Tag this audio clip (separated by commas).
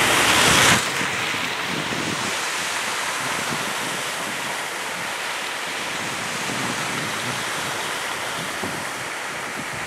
Car, Vehicle, Motor vehicle (road)